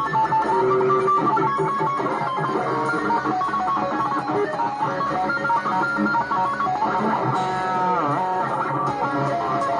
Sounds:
music, musical instrument, bass guitar

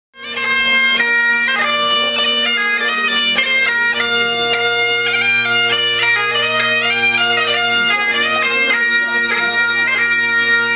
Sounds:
music, bagpipes

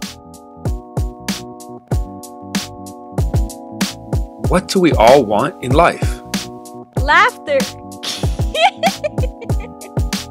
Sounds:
music, speech

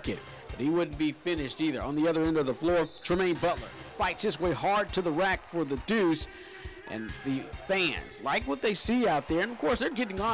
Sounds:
speech, music

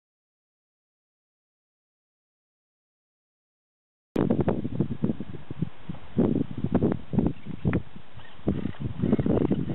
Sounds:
silence, outside, rural or natural

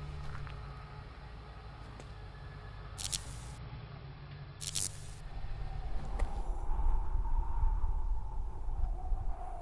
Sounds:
music

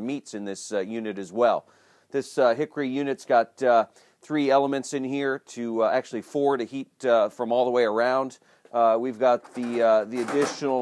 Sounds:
speech

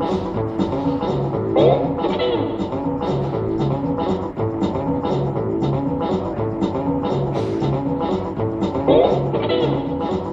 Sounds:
musical instrument, music, guitar, plucked string instrument, strum

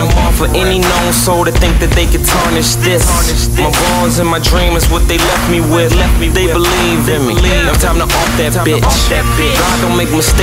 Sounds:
music

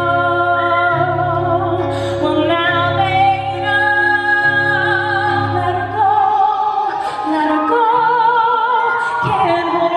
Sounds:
opera, music, singing

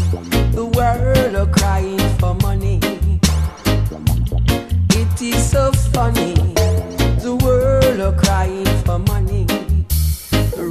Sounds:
music

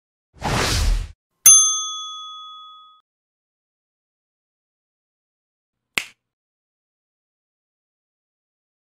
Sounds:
sound effect

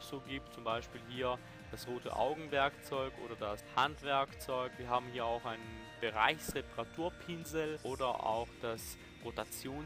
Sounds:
speech, music

